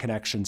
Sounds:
speech, human voice, male speech

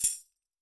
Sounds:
percussion, tambourine, music, musical instrument

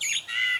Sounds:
bird, wild animals, animal

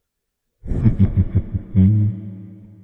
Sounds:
laughter, human voice

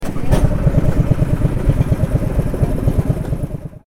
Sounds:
engine, engine starting, motor vehicle (road), car, vehicle

